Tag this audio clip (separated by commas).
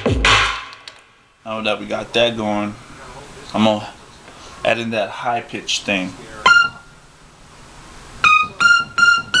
Electronic music, Piano, Dubstep, Hip hop music, Musical instrument, Music, Keyboard (musical), Speech